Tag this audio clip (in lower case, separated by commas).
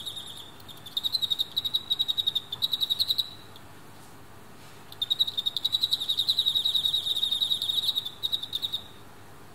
cricket chirping